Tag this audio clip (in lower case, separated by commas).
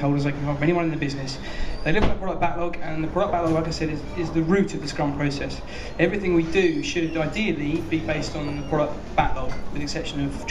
speech